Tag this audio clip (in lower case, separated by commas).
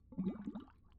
water, liquid, gurgling